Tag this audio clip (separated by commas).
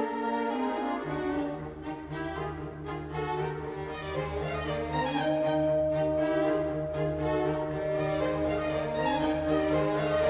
Brass instrument, French horn, Bowed string instrument